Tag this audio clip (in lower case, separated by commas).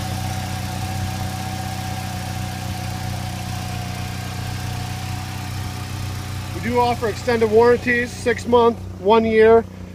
idling, speech